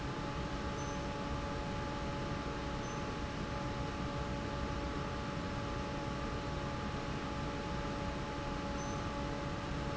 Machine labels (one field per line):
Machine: fan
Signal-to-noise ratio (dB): -6 dB